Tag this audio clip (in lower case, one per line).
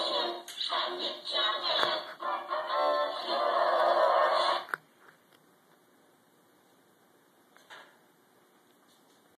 sound effect